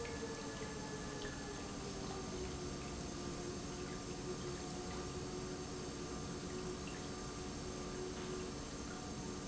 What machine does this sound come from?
pump